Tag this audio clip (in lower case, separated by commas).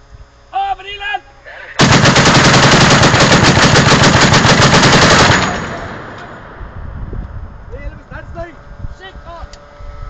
gunfire, machine gun